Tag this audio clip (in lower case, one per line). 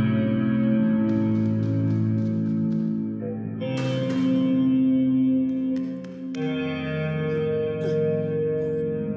music